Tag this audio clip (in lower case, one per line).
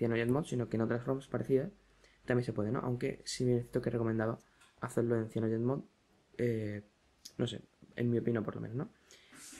speech